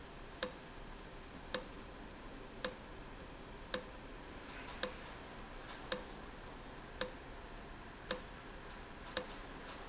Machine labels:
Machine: valve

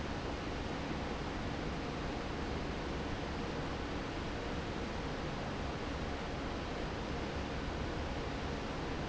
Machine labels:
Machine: fan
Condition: normal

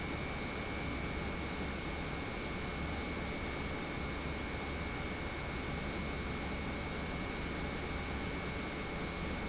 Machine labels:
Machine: pump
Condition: normal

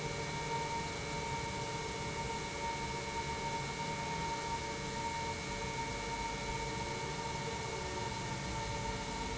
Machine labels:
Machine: pump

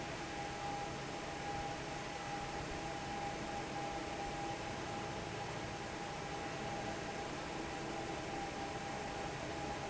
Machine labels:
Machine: fan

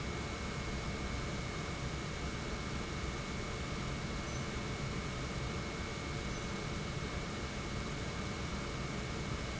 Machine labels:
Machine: pump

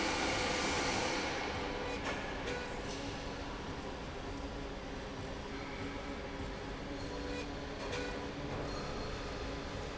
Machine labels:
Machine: slide rail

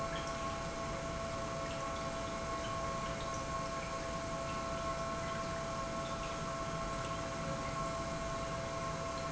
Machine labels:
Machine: pump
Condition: normal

